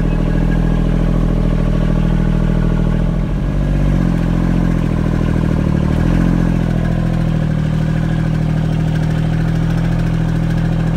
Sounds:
Vehicle

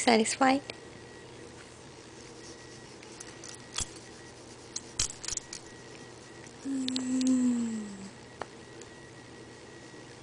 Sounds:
Speech

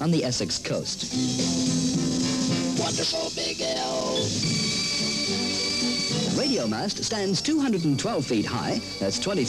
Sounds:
Speech, Music

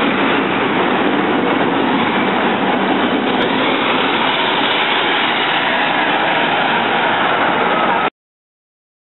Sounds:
Vehicle, Engine

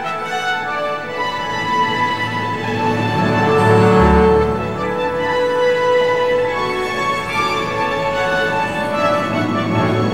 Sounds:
Music, Rhythm and blues

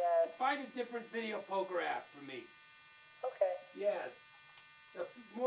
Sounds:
Speech

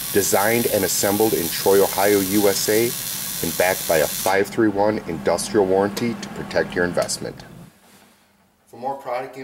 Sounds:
inside a small room, Speech

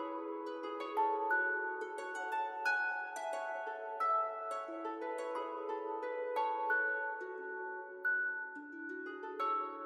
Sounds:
Music

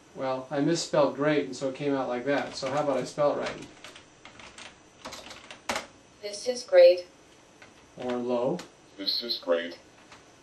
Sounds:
Speech synthesizer, Speech

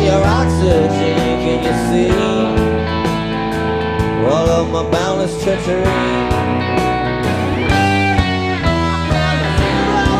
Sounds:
Music

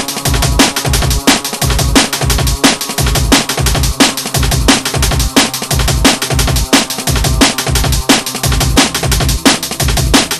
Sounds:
Music

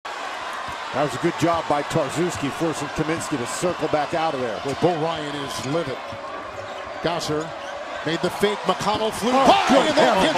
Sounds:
Basketball bounce

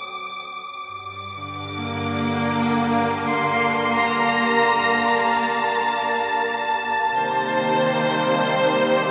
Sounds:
Music

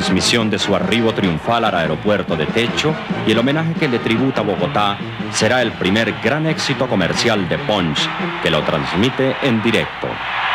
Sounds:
Music, Speech

